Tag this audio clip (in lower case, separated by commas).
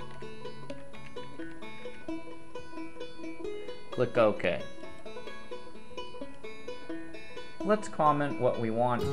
speech, music, harpsichord